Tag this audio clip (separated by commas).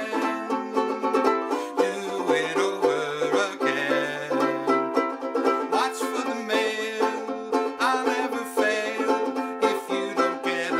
Music